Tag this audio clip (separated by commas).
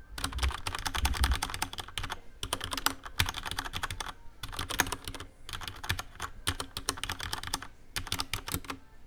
home sounds, Typing